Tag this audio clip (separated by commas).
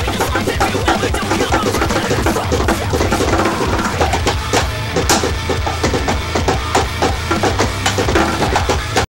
Music, Speech